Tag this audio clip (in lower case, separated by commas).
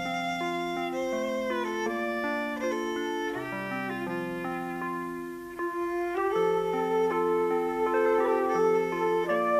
music